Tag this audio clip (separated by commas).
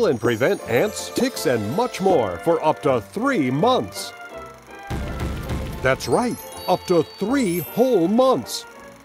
Music, Speech